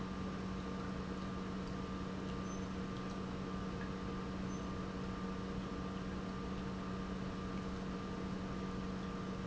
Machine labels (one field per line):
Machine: pump